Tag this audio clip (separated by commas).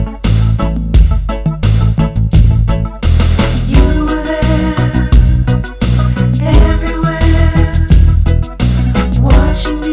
Gospel music, Music